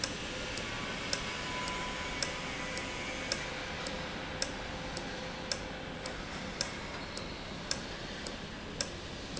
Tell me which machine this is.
valve